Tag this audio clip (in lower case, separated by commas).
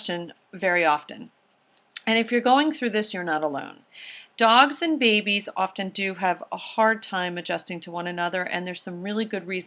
speech